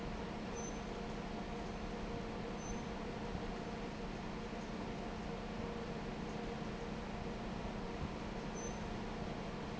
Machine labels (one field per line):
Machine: fan